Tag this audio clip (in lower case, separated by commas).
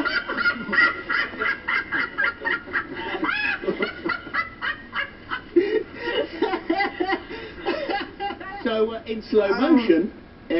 people sniggering, speech, snicker